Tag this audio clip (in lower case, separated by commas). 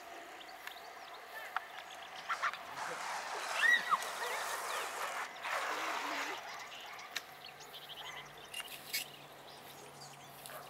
outside, rural or natural, speech